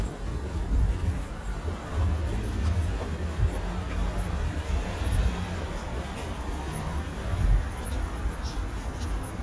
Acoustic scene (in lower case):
residential area